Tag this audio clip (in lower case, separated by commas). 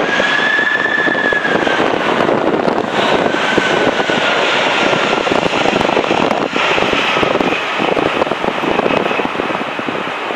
aircraft engine, vehicle, aircraft, outside, urban or man-made